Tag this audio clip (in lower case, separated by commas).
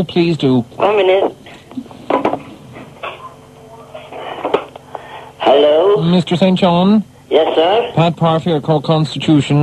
speech